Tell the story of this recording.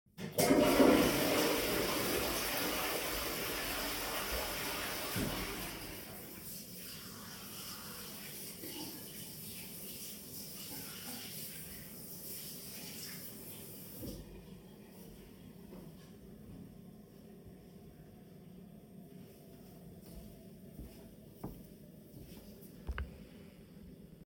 I flushed the toilet and washed my hands. I walked out of the bathroom.